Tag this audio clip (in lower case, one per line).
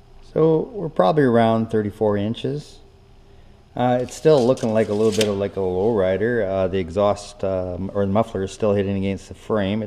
speech